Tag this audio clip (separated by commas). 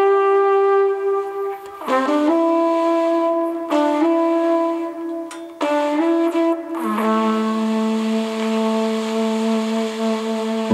inside a large room or hall, Music